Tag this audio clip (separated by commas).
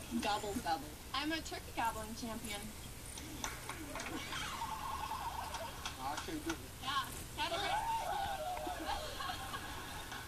Speech, Bird